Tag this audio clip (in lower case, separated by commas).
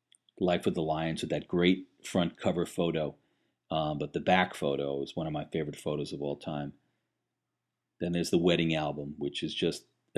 speech